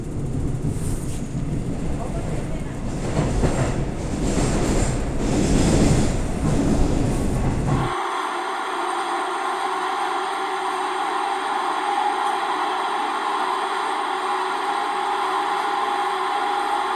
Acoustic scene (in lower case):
subway train